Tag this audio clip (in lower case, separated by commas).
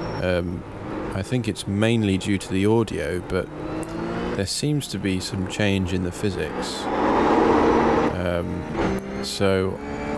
speech